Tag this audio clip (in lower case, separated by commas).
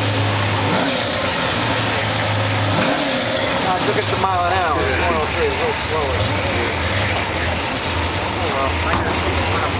race car, speech, vehicle, vroom